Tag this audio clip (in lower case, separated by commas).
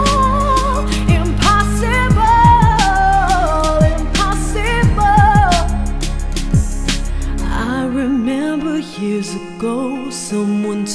singing